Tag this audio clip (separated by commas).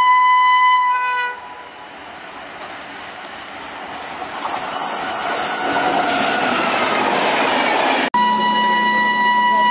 train whistling